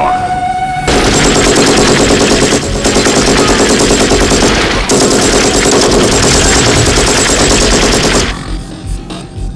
A machine gun is being fired